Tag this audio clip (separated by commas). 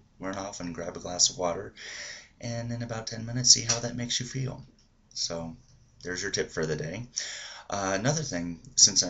Speech